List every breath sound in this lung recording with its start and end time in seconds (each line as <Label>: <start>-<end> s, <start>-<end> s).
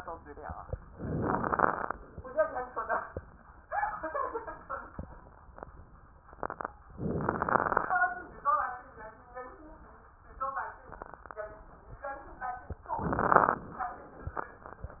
Inhalation: 0.91-1.94 s, 6.98-8.01 s, 12.98-13.81 s
Crackles: 0.91-1.94 s, 6.98-8.01 s, 12.98-13.81 s